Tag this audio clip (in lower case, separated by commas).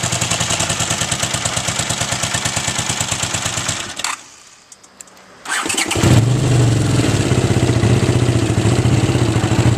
motorcycle, vehicle, outside, urban or man-made